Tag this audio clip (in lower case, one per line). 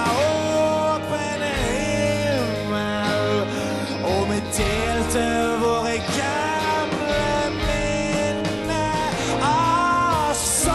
music